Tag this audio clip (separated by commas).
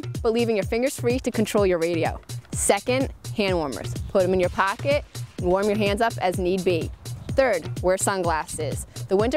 Music, Speech